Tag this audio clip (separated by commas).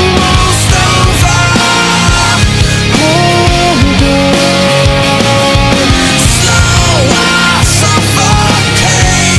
Music